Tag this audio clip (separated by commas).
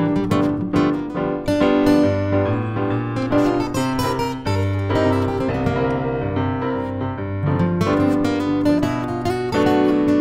Tender music, Blues, Music